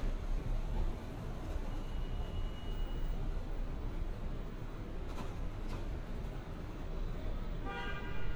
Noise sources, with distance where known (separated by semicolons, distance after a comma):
car horn, far